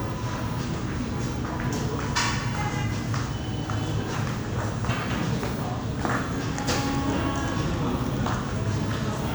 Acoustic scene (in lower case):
cafe